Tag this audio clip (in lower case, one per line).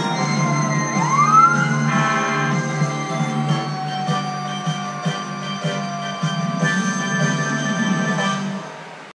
vehicle
music